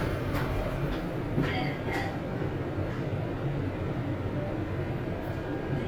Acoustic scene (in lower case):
elevator